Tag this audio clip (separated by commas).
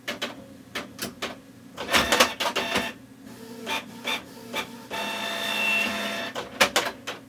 Mechanisms, Printer